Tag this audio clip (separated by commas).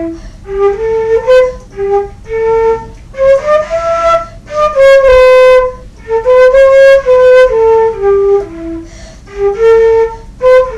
Music, Flute